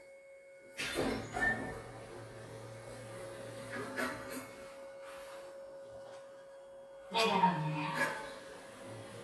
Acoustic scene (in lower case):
elevator